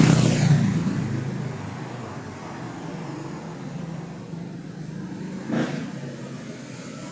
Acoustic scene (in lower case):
street